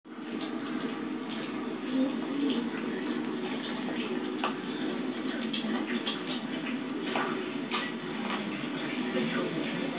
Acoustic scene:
park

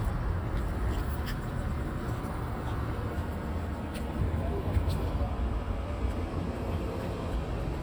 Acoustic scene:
residential area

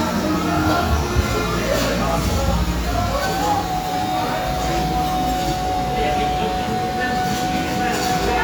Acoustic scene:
cafe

